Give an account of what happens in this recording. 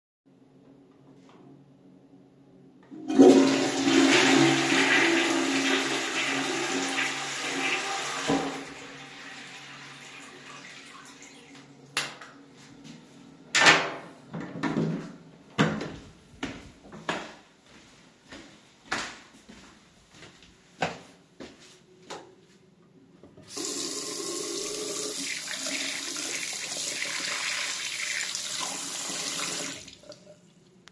I flushed the toilet, turned off the light switch, opened the door, then walked to the sink and turned on the faucet.